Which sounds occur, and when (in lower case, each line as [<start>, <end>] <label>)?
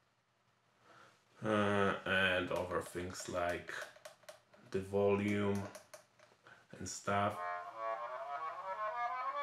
[0.00, 9.42] background noise
[0.79, 1.21] breathing
[1.35, 2.02] human voice
[2.04, 3.93] male speech
[2.48, 2.56] clicking
[2.67, 2.74] clicking
[2.83, 2.93] clicking
[3.16, 3.29] clicking
[3.41, 3.51] clicking
[3.72, 3.83] clicking
[4.03, 4.13] clicking
[4.26, 4.33] clicking
[4.47, 4.55] clicking
[4.71, 5.65] male speech
[5.24, 5.34] clicking
[5.53, 5.76] clicking
[5.88, 6.03] clicking
[6.13, 6.23] clicking
[6.43, 6.66] breathing
[6.71, 7.31] male speech
[7.29, 9.42] music